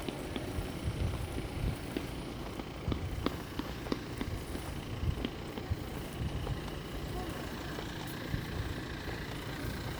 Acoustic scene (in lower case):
residential area